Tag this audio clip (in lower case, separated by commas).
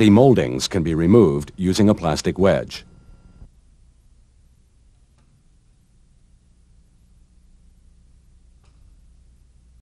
speech